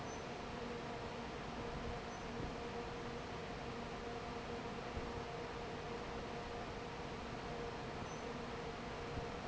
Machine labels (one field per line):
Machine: fan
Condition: normal